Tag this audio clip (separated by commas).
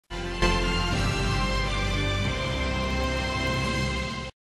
Tender music, Music